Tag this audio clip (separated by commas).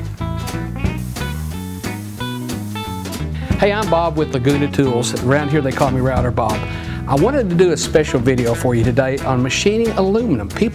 Tools, Speech, Music